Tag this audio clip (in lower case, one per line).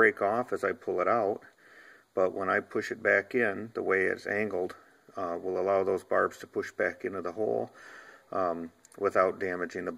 speech